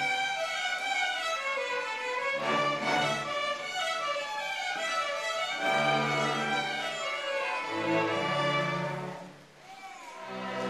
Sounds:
music
orchestra

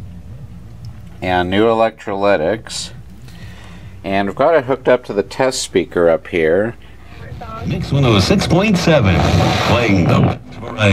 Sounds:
speech

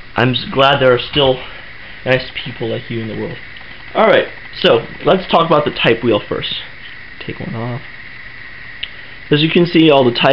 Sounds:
speech

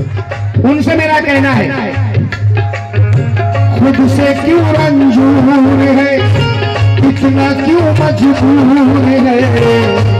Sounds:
middle eastern music
speech
music

